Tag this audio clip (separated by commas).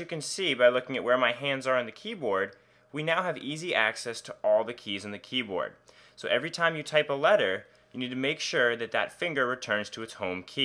Speech